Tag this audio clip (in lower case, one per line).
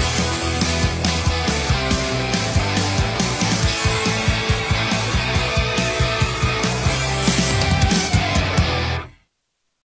jazz
rhythm and blues
music